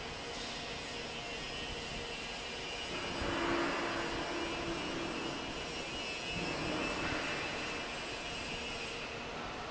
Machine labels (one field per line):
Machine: fan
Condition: normal